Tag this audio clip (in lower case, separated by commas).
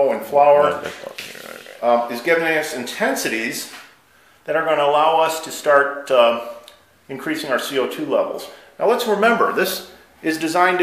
speech, inside a small room